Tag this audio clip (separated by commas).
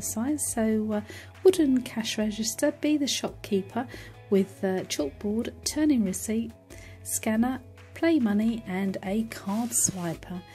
Music, Speech